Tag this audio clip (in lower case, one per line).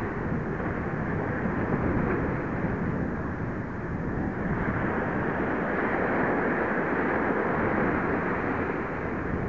water vehicle
vehicle